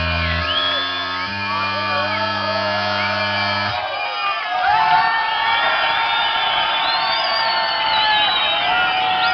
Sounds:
techno

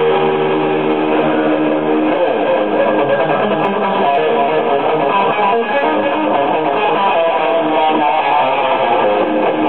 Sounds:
electric guitar, music, plucked string instrument, musical instrument, acoustic guitar, guitar

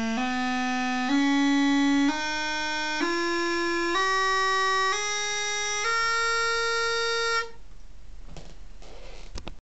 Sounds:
music

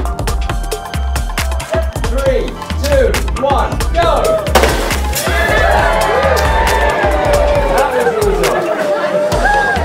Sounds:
speech, inside a large room or hall, music

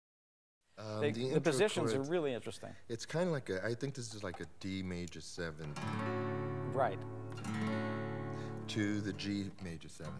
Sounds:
speech, guitar, plucked string instrument, strum, music, musical instrument

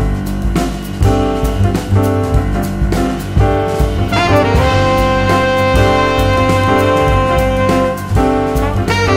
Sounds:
music

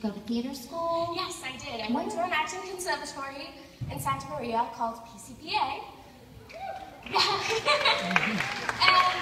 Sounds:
speech

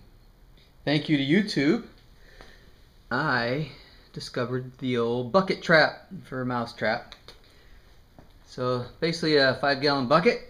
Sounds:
speech

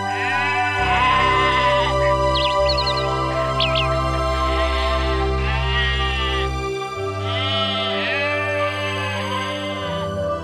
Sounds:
bleat, music

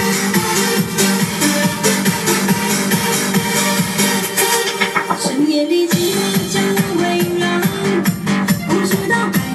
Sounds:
music, exciting music

